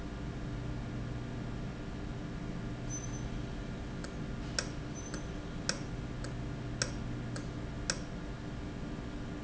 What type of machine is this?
valve